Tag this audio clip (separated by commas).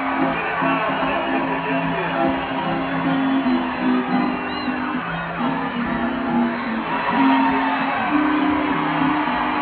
Speech, Whoop, Music